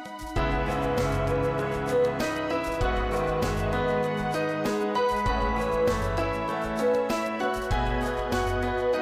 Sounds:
Happy music, Music, Theme music

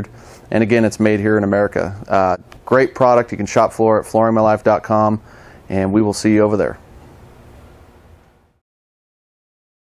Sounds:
Speech

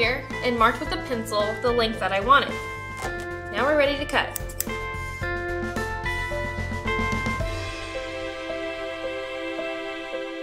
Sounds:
Speech, Music

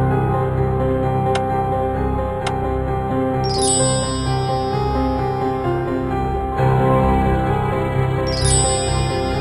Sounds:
Music

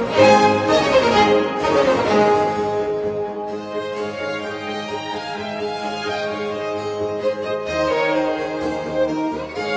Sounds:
fiddle, Musical instrument, Music

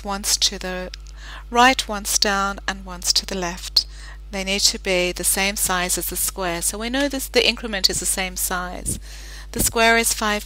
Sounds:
Speech

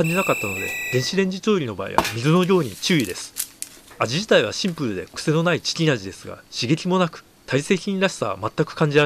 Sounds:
Speech

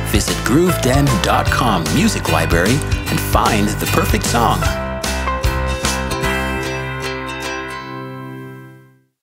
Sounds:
Speech, Background music, Music

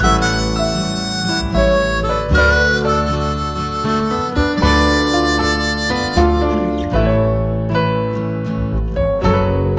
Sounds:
Music

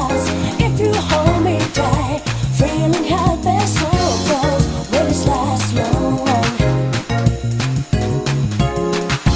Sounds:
Music

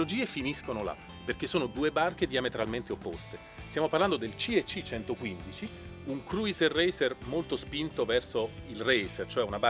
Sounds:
Music, Speech

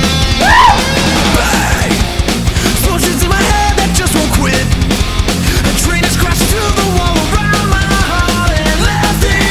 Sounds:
Music

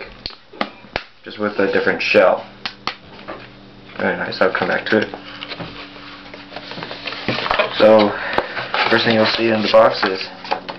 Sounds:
Speech

